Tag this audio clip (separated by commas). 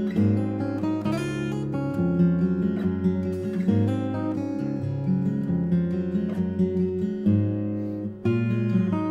Music